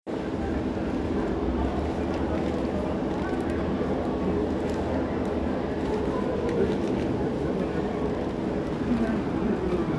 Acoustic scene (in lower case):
crowded indoor space